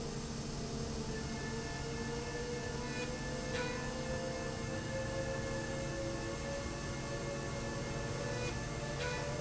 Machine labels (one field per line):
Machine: slide rail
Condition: normal